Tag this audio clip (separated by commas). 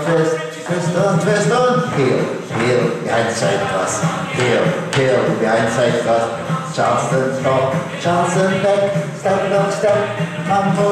Speech, Music